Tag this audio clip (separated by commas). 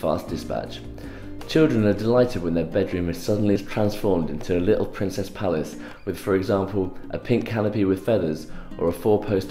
Music, Speech